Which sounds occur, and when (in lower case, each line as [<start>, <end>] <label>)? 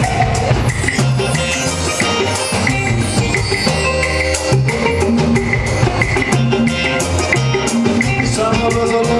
[0.01, 9.15] music
[8.21, 9.15] male singing